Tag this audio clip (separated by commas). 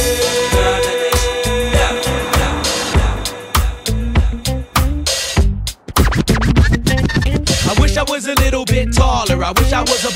House music, Music, Hip hop music